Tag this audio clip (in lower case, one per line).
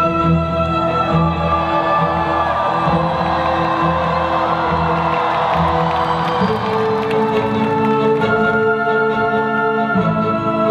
music
orchestra